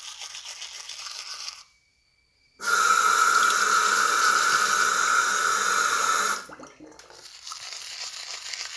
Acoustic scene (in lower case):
restroom